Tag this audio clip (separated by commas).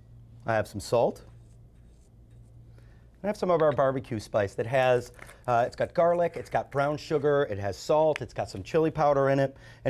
Speech